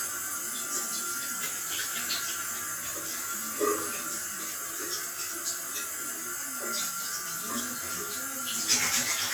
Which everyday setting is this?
restroom